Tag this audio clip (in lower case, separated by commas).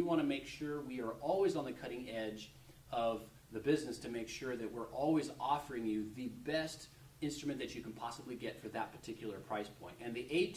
speech